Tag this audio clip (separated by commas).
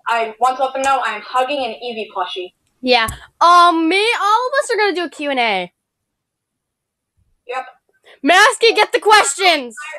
Speech